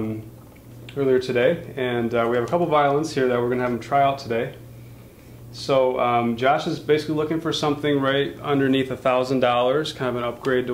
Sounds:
speech

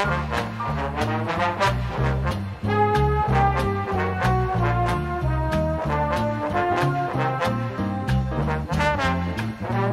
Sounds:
playing trombone
trombone
brass instrument
musical instrument
trumpet
swing music
music

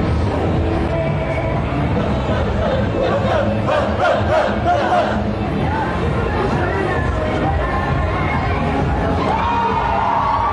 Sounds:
music

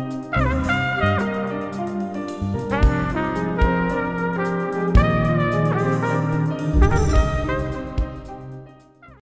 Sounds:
brass instrument

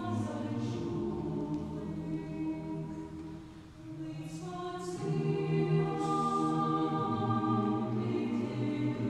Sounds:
music
lullaby

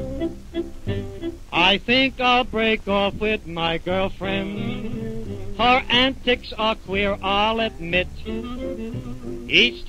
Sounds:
music

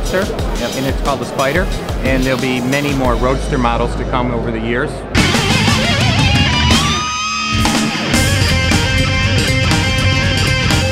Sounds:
heavy metal

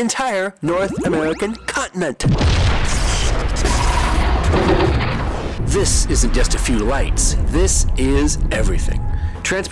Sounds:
boom
speech

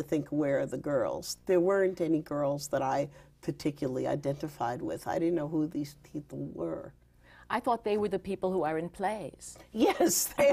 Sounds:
speech
woman speaking

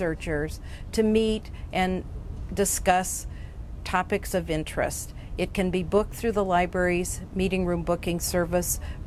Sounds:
speech

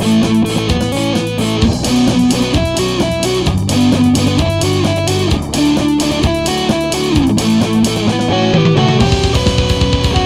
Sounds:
plucked string instrument
musical instrument
acoustic guitar
playing electric guitar
music
electric guitar

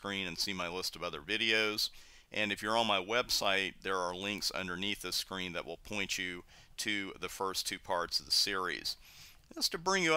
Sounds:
speech

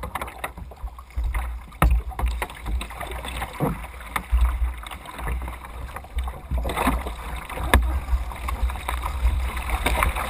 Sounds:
waves

